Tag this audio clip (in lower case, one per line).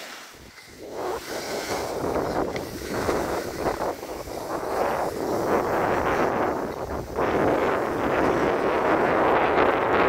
skiing